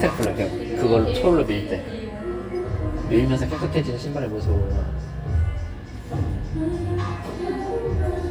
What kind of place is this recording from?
cafe